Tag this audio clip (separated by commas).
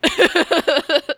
Human voice, Laughter